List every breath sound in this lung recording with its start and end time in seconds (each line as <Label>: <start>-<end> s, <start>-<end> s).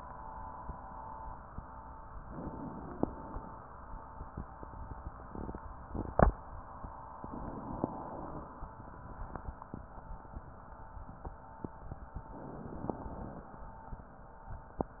Inhalation: 2.22-2.95 s, 7.21-7.92 s, 12.23-12.98 s
Exhalation: 2.94-3.73 s, 7.89-8.67 s, 12.97-13.63 s
Crackles: 7.19-7.89 s